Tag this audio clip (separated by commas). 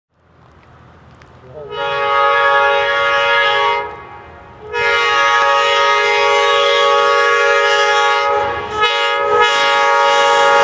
train wagon, Train horn, Rail transport, Train